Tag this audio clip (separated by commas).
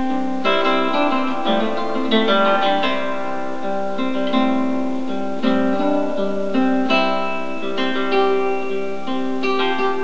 Musical instrument, Plucked string instrument, Bowed string instrument, Guitar, Music, Acoustic guitar